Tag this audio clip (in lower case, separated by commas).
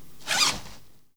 zipper (clothing), home sounds